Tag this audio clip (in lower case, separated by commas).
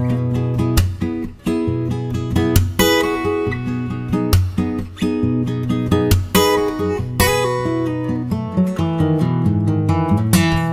music